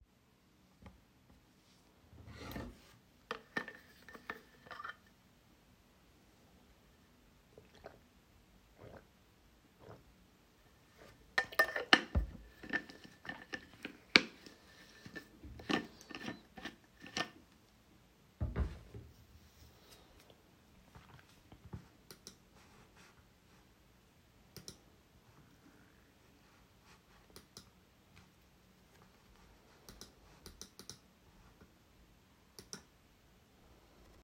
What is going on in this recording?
I was sitting at my desk working on my laptop. I opened my water bottle and drank water while continuing to work. During this time I typed on the keyboard.